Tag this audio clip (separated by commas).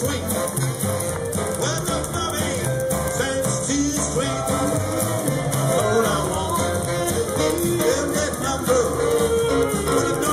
Rock and roll, Music